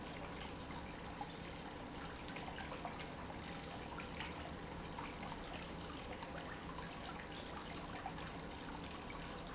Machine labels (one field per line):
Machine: pump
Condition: normal